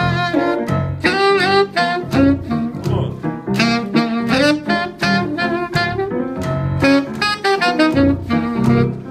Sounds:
playing saxophone, Music, Brass instrument, Musical instrument, Saxophone

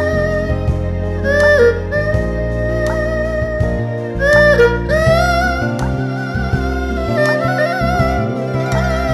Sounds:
playing erhu

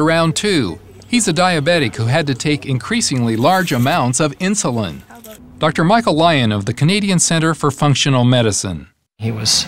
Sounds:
Speech

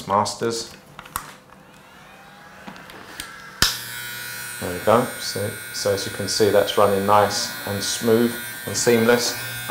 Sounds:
Speech, inside a small room, Electric shaver

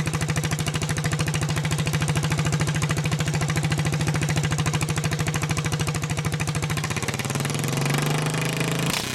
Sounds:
Vehicle

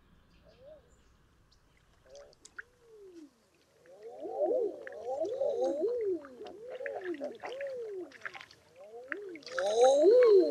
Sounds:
bird squawking

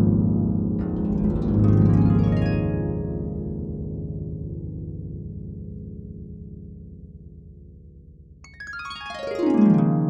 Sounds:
Keyboard (musical), Musical instrument, Music

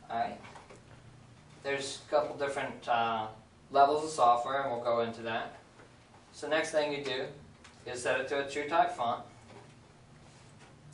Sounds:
Speech

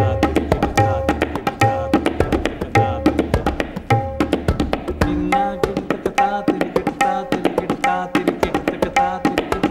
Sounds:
playing tabla

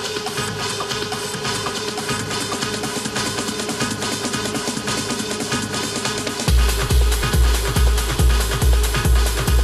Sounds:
Music, Trance music

